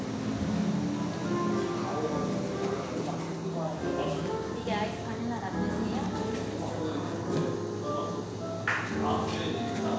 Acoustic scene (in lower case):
cafe